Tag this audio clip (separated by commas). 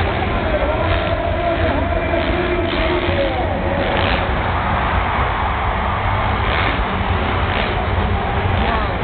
Speech